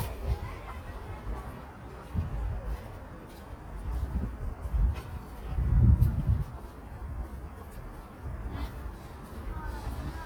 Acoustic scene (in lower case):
residential area